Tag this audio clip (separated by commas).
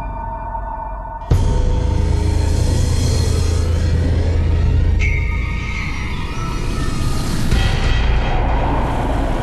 Music